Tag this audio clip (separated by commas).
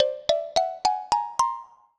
Percussion, Musical instrument, Mallet percussion, Music, Marimba